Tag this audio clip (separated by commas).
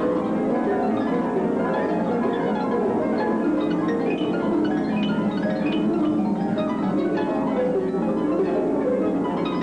Musical instrument, Music